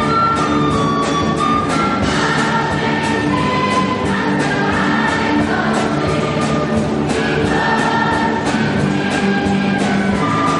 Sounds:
Music

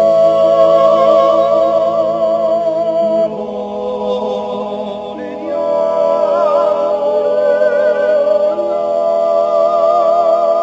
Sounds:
yodelling

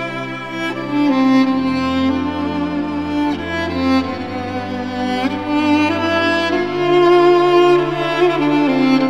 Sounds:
Music, Bowed string instrument, Cello

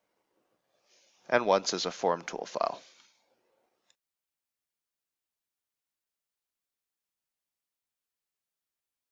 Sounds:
Speech

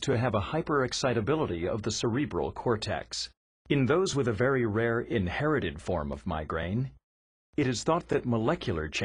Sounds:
Speech

